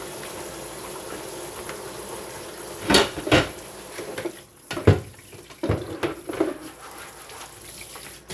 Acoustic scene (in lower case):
kitchen